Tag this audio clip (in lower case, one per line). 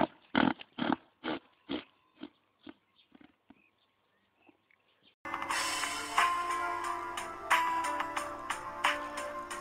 music